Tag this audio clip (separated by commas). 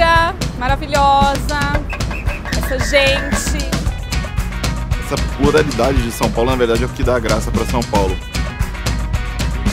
Music, Speech